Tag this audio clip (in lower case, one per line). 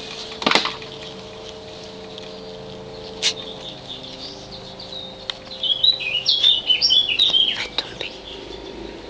speech
animal